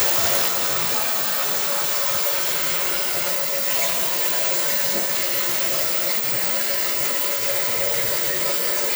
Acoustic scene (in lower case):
restroom